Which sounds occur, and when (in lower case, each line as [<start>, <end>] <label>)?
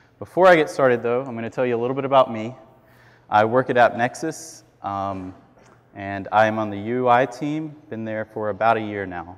[0.00, 9.35] background noise
[0.19, 2.53] male speech
[2.73, 3.27] breathing
[3.33, 4.34] male speech
[4.75, 5.32] male speech
[5.92, 9.35] male speech